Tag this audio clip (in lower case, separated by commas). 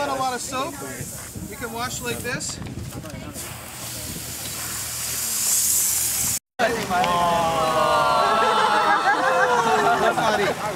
speech